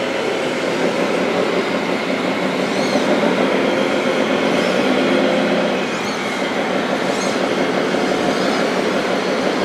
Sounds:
truck

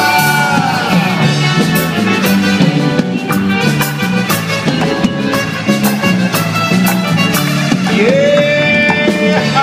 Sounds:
music
singing
rock and roll

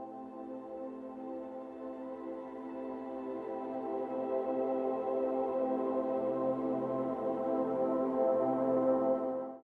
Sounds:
music

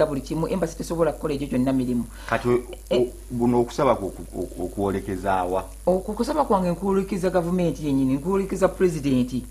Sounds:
inside a small room
speech

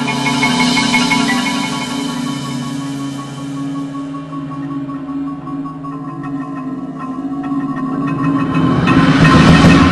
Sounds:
percussion
music

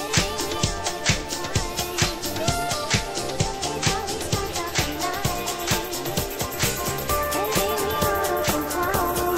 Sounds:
music
house music

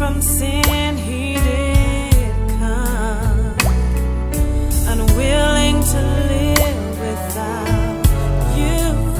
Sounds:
music
christmas music

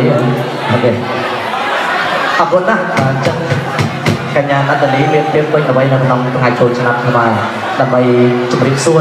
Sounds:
speech

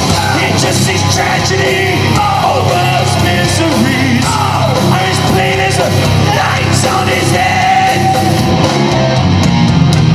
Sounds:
heavy metal
crowd
music

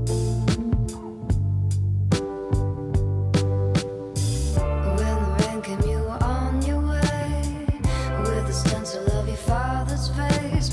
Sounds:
music

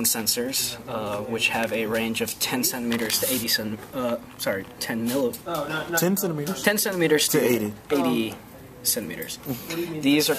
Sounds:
speech

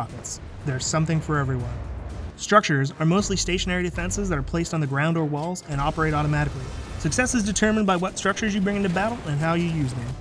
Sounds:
music
speech

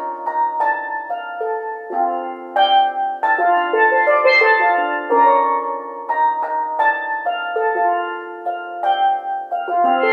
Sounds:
playing steelpan

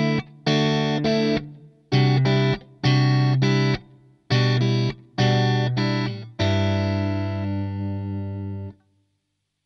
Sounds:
distortion
music

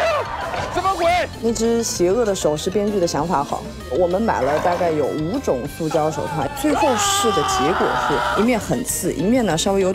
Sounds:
bouncing on trampoline

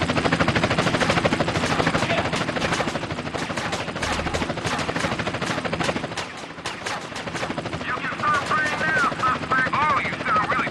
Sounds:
speech

